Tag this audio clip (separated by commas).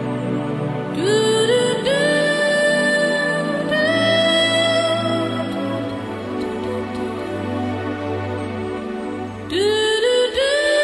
Music